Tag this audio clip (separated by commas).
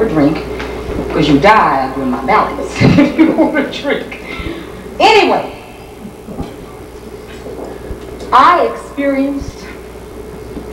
Narration, Speech